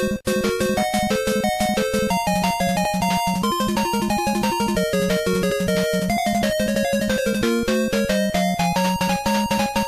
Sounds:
video game music, music

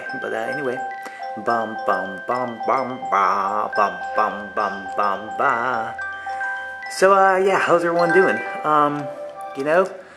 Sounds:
music, speech, glockenspiel

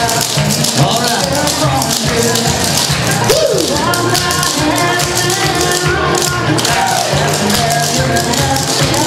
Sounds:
music, tap, speech

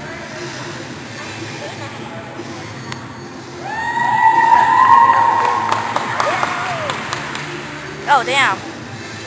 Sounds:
music, speech

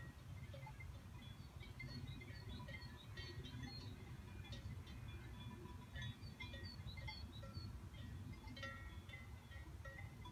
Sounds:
cattle

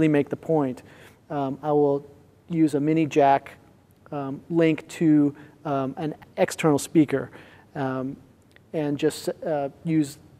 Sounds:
speech

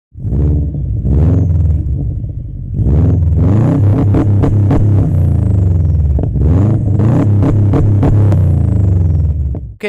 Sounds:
car, motor vehicle (road), vehicle

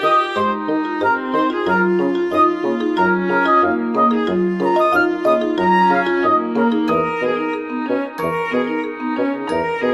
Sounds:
music

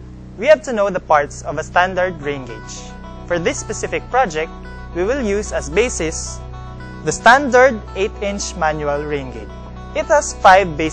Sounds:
music, speech

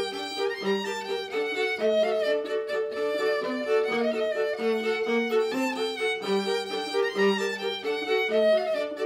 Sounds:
violin, music, musical instrument

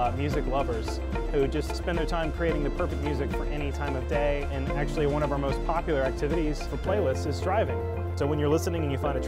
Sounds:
music, speech

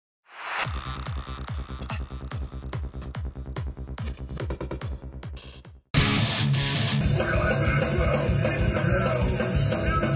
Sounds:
music, singing

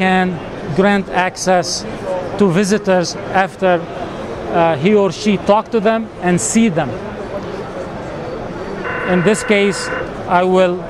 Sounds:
speech

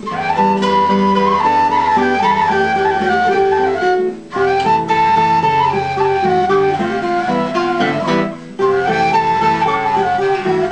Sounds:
flute, woodwind instrument, playing flute

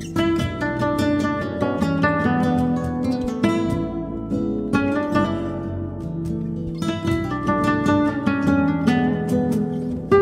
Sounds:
plucked string instrument, musical instrument, music, acoustic guitar, guitar, music of latin america

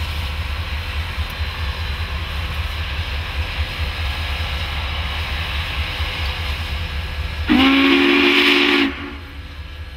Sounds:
train whistle, hiss, steam, steam whistle

